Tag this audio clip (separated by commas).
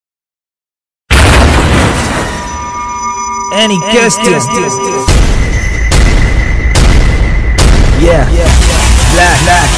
thud, Music, Speech